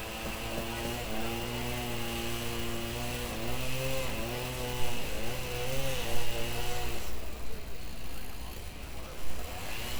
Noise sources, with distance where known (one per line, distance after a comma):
unidentified powered saw, near